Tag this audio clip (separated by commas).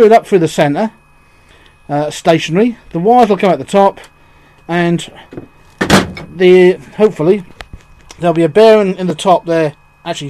Speech